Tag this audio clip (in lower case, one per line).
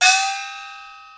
music
gong
percussion
musical instrument